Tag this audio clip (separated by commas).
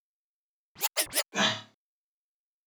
Musical instrument, Music, Scratching (performance technique)